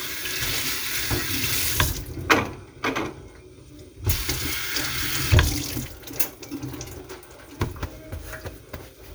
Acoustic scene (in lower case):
kitchen